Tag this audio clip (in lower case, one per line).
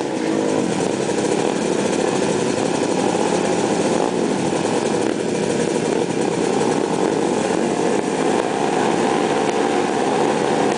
outside, urban or man-made
vehicle